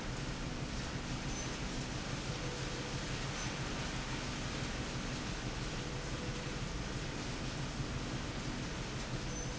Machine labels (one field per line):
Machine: slide rail